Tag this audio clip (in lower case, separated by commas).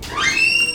door, home sounds, squeak